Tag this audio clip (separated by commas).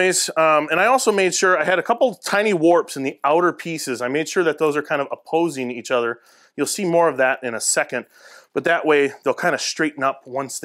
planing timber